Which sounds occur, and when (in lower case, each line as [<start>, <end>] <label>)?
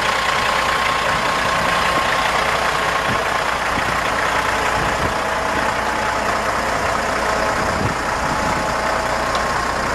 [0.00, 9.94] heavy engine (low frequency)
[0.00, 9.94] wind
[3.02, 3.17] wind noise (microphone)
[3.65, 4.00] wind noise (microphone)
[4.70, 5.16] wind noise (microphone)
[7.58, 7.93] wind noise (microphone)
[8.14, 8.77] wind noise (microphone)
[9.30, 9.42] tick